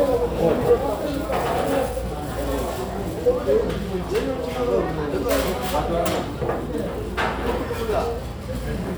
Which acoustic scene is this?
crowded indoor space